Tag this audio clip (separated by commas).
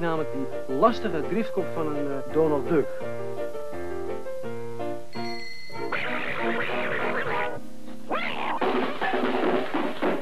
Speech, Music